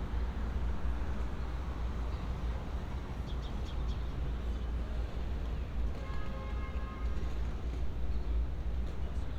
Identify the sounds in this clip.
car horn